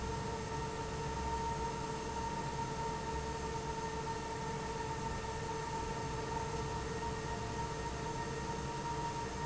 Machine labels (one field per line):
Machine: fan